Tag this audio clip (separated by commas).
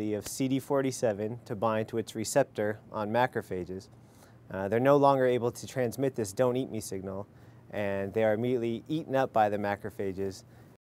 Speech